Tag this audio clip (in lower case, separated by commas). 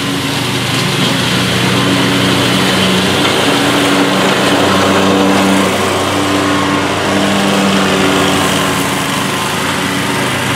lawn mowing